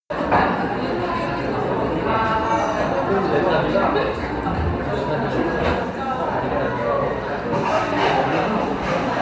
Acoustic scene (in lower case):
cafe